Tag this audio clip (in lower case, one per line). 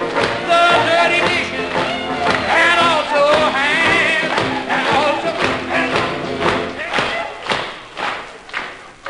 music
speech
tap